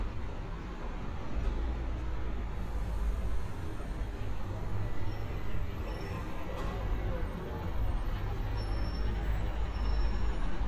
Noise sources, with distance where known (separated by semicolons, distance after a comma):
engine of unclear size